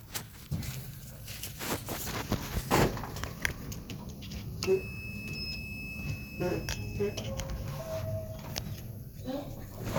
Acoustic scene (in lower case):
elevator